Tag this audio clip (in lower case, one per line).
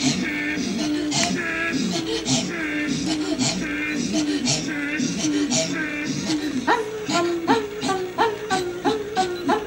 female singing